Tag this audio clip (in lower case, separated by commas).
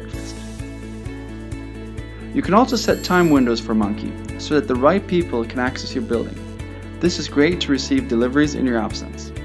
music, speech